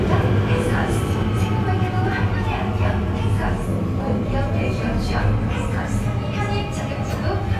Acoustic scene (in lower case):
subway station